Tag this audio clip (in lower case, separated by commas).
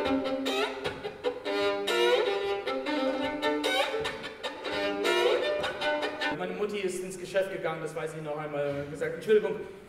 bowed string instrument, speech, music